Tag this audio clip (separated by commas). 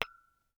Tap, Glass